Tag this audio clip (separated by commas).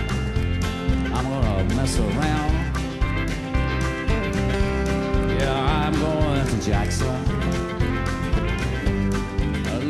Music